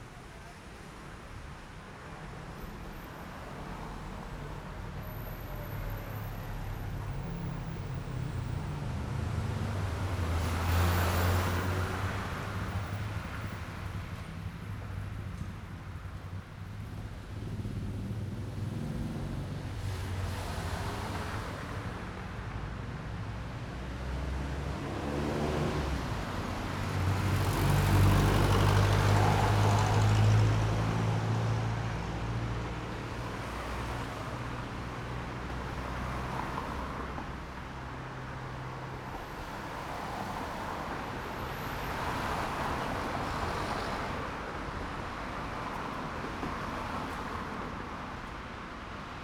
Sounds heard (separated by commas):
motorcycle engine accelerating, motorcycle, car wheels rolling, car engine accelerating, people talking, motorcycle engine idling, car